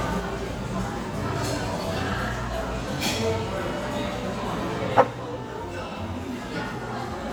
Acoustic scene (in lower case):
cafe